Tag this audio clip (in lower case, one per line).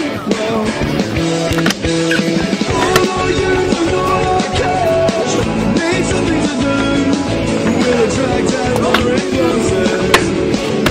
skateboard